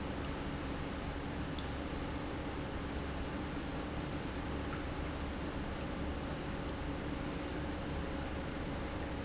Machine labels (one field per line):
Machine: pump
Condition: normal